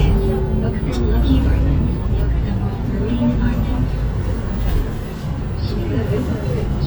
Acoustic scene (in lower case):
bus